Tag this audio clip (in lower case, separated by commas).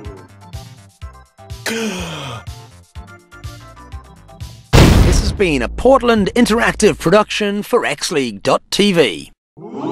speech, music